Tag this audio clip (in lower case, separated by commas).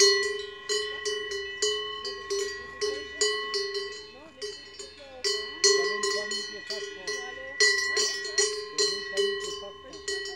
cattle